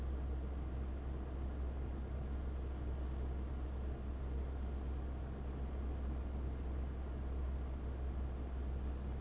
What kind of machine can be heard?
fan